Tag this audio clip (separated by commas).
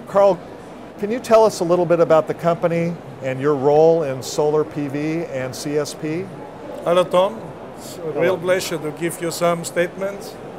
Speech